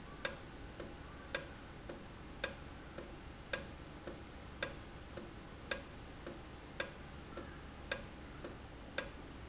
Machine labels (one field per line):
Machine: valve